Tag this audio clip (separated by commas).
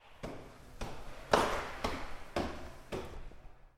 Walk